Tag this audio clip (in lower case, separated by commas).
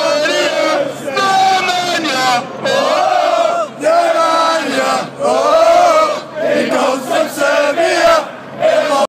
choir, male singing